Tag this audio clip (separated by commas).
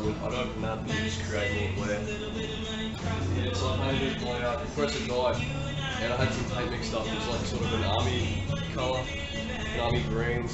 Music, Speech